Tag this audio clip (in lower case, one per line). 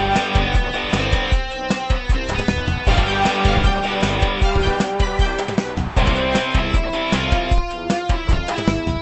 music